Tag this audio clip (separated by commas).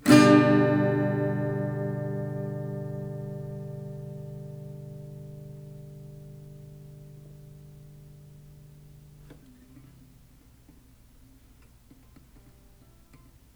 Plucked string instrument, Strum, Music, Musical instrument, Guitar, Acoustic guitar